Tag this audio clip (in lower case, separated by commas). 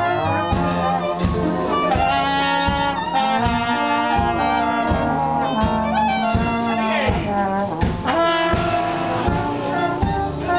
music, speech